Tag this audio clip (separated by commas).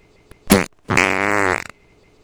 Fart